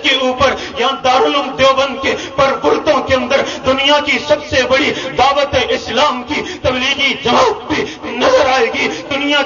A person talks fast and sobs